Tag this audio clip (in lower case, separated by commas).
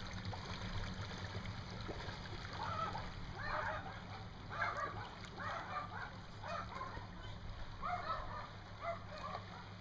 splatter, vehicle